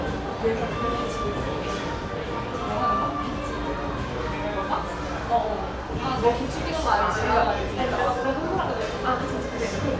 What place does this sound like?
cafe